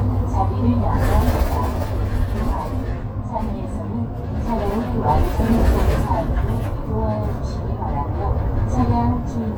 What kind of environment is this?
bus